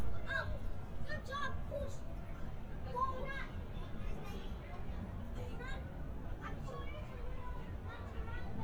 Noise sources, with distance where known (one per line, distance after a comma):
unidentified human voice